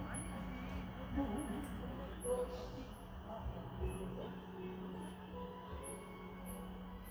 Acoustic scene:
park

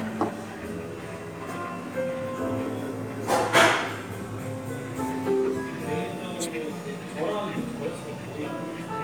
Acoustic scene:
cafe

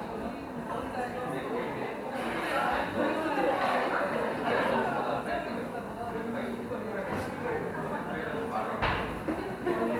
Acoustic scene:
cafe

